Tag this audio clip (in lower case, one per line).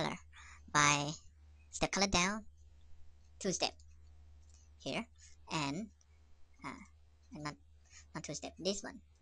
speech